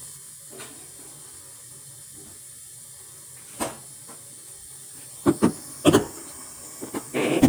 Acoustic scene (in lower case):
kitchen